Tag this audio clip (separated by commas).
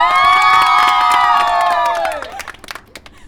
Cheering, Human group actions, Applause